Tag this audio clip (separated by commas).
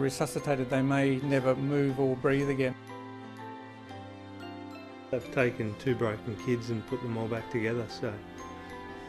Speech, Music